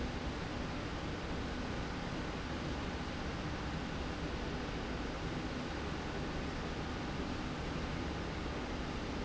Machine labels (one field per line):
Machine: slide rail